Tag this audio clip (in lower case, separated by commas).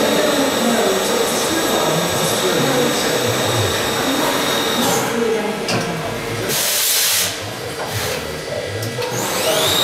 speech